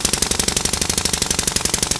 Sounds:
tools

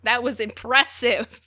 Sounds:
human voice

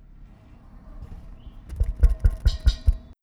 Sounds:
tap

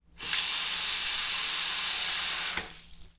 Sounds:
sink (filling or washing)
water tap
domestic sounds

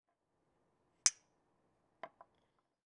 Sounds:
glass
clink

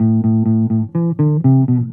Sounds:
musical instrument
plucked string instrument
music
bass guitar
guitar

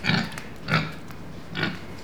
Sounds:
animal
livestock

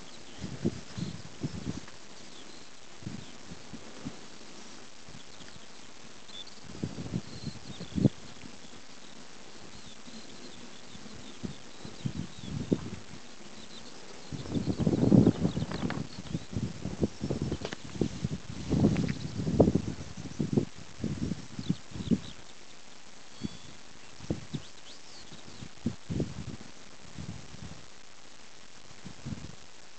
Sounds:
bird song
wild animals
animal
bird

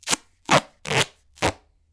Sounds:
duct tape
domestic sounds

